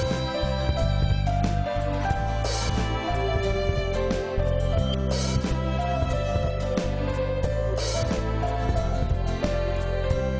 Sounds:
Music, Orchestra

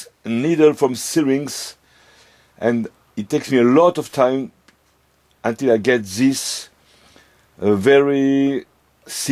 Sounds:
Speech

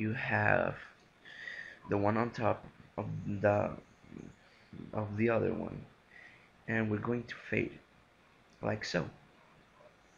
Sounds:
Speech

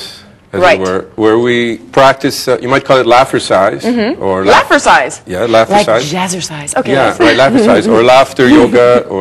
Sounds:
Chuckle, Speech

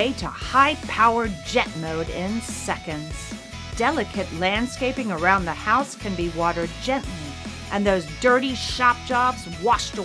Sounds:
Music, Speech

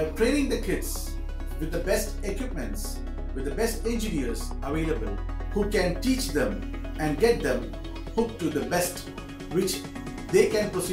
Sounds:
Speech, Music

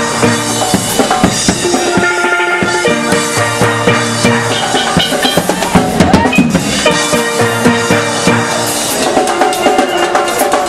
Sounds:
Music

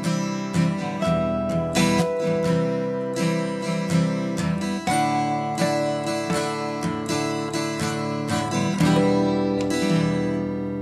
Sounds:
Musical instrument, Guitar, Music, Plucked string instrument, Acoustic guitar

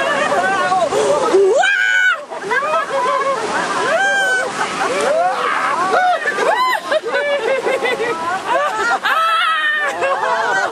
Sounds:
people sniggering, Snicker

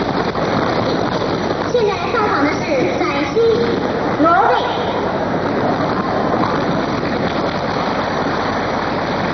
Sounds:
Speech

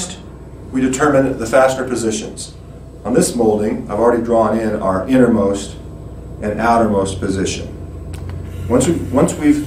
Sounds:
Speech

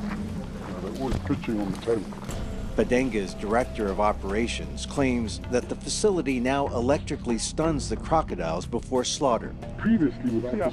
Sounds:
crocodiles hissing

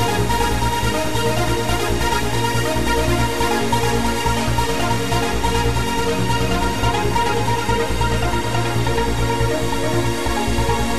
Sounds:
Music

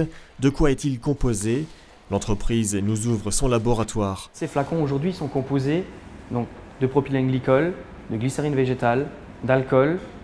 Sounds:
Speech

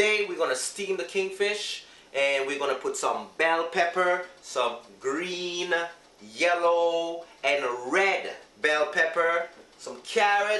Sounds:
Speech

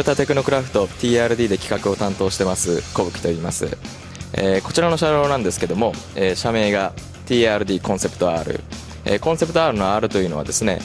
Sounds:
Electronic music, Techno, Speech, Music

